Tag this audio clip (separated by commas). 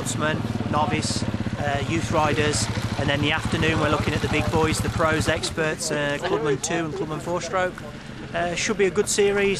Speech, Vehicle